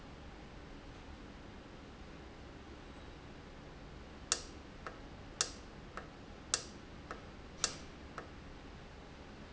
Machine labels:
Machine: valve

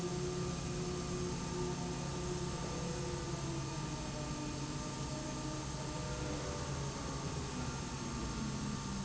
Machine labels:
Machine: slide rail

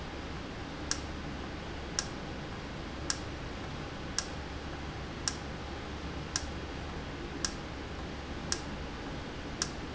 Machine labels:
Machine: valve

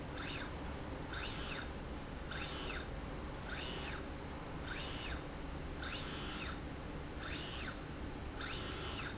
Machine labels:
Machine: slide rail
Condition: normal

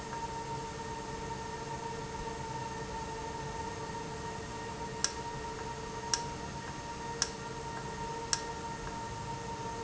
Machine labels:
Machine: valve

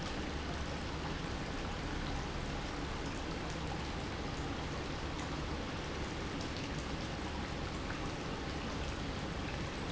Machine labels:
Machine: pump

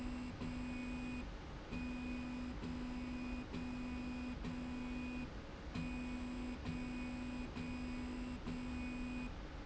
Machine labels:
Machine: slide rail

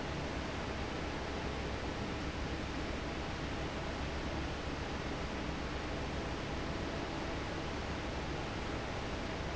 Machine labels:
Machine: fan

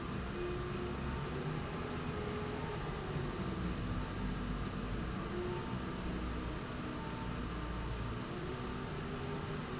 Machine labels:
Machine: slide rail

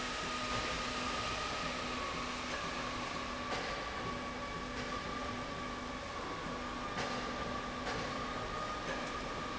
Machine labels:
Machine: slide rail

